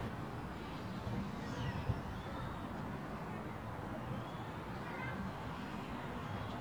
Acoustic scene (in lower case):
residential area